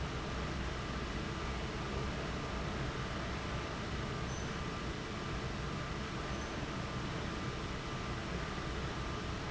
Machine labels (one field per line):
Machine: fan